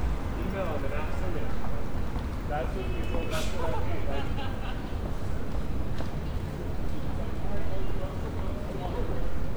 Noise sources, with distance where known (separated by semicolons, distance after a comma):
person or small group talking, near